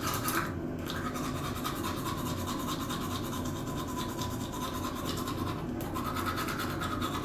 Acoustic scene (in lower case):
restroom